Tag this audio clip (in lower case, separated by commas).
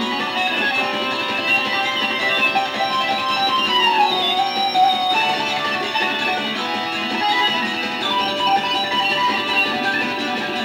music, musical instrument